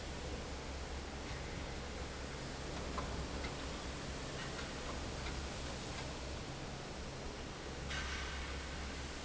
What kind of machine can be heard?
fan